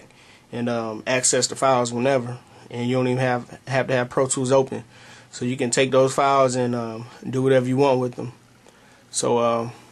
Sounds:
Speech

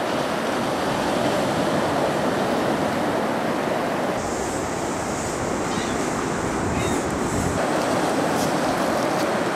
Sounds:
Ocean, ocean burbling

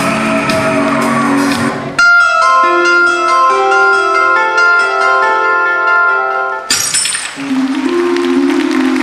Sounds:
inside a large room or hall, Bell, Music

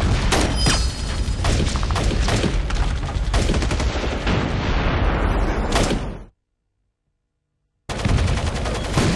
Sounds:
Boom

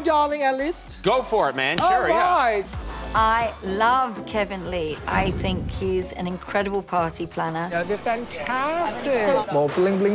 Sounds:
Speech, Music

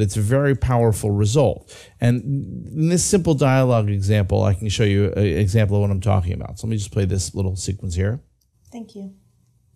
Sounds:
Speech

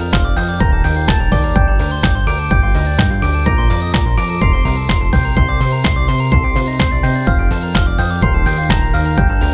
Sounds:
Music, Theme music

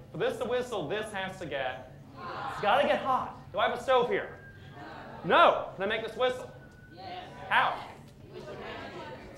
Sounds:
Speech

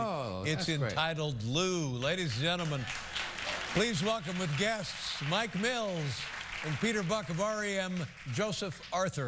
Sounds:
Speech

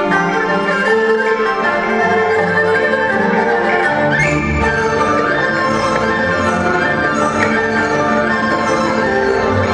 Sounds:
playing erhu

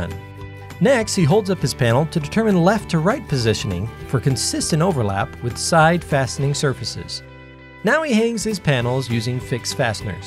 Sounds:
Music, Speech

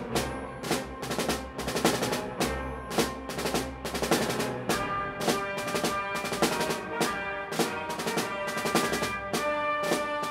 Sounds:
playing snare drum

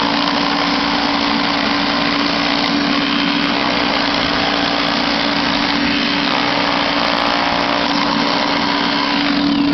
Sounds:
Power tool, Drill

